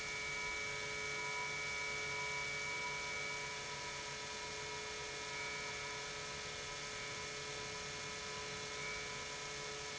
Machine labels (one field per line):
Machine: pump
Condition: normal